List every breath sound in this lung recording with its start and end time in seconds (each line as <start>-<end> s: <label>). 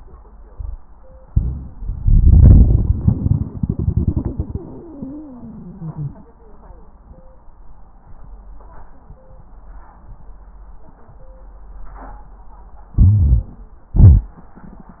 1.26-1.71 s: inhalation
4.55-6.14 s: wheeze
12.93-13.54 s: inhalation
12.93-13.54 s: wheeze
13.98-14.40 s: exhalation